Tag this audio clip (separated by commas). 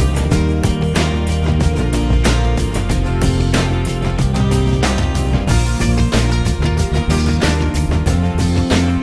Music